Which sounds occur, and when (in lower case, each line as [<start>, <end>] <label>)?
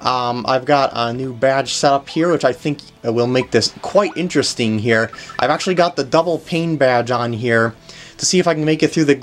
[0.00, 2.83] male speech
[0.00, 9.22] music
[0.00, 9.22] video game sound
[3.02, 5.08] male speech
[5.10, 5.39] breathing
[5.38, 7.74] male speech
[7.76, 8.15] breathing
[8.15, 9.22] male speech